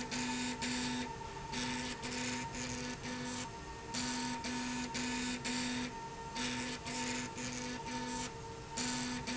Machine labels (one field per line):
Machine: slide rail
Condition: abnormal